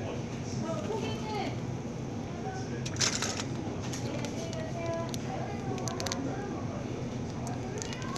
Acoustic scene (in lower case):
crowded indoor space